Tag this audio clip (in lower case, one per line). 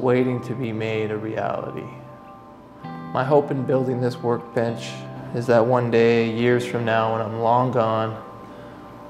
planing timber